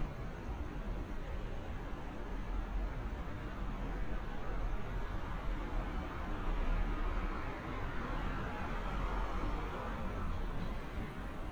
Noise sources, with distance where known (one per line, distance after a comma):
medium-sounding engine, far